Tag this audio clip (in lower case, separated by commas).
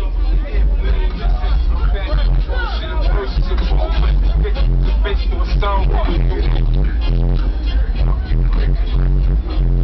music, speech